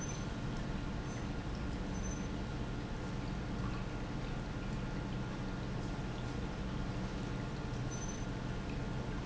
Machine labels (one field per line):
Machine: pump